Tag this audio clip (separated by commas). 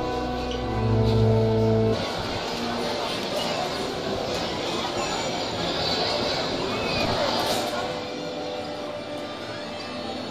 Speech, Music